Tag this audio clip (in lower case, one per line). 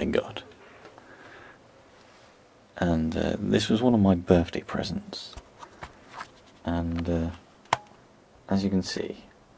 speech